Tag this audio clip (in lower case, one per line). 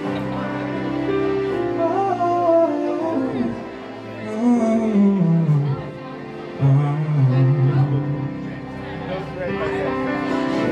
male singing
speech
music